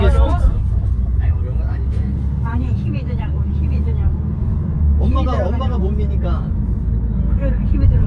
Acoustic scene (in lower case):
car